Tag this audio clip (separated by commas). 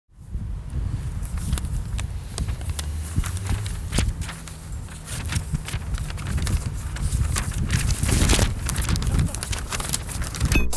outside, urban or man-made